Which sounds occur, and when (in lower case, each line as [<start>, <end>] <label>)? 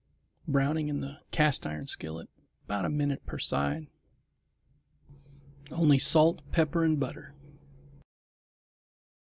[0.00, 7.98] mechanisms
[0.39, 1.12] man speaking
[1.29, 2.17] man speaking
[2.65, 3.78] man speaking
[5.03, 5.60] breathing
[5.62, 6.27] man speaking
[6.50, 7.33] man speaking